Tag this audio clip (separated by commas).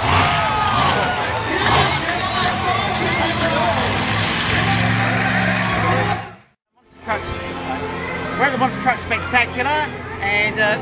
Vehicle, Speech, Truck, Music